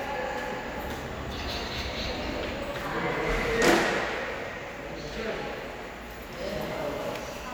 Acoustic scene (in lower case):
subway station